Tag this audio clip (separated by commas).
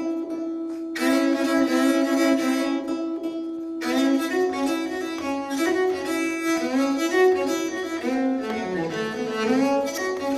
Cello, Musical instrument, Bowed string instrument, Music